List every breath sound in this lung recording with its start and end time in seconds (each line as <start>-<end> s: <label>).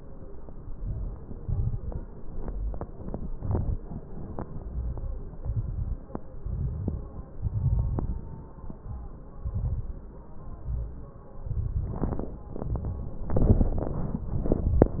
0.66-1.38 s: inhalation
0.66-1.38 s: crackles
1.42-2.03 s: exhalation
1.42-2.03 s: crackles
2.28-2.89 s: inhalation
2.28-2.89 s: crackles
3.23-3.78 s: exhalation
3.23-3.78 s: crackles
4.60-5.34 s: inhalation
4.60-5.34 s: crackles
5.34-6.08 s: exhalation
5.34-6.08 s: crackles
6.38-7.28 s: inhalation
6.38-7.28 s: crackles
7.39-8.28 s: exhalation
7.39-8.28 s: crackles
9.44-10.11 s: inhalation
9.44-10.11 s: crackles
10.53-11.19 s: exhalation
10.53-11.19 s: crackles
11.46-12.39 s: inhalation
11.46-12.39 s: crackles
12.50-13.36 s: crackles
12.56-13.39 s: exhalation
13.38-14.35 s: inhalation
13.38-14.35 s: crackles
14.35-15.00 s: exhalation
14.35-15.00 s: crackles